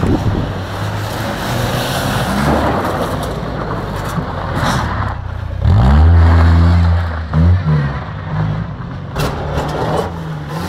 Vehicle running with wind in the background